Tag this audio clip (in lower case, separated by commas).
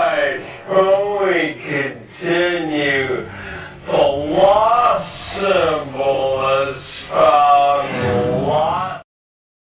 speech